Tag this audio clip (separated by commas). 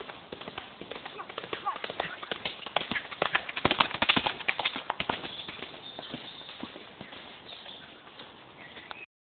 Animal, Clip-clop, Horse, horse clip-clop, Speech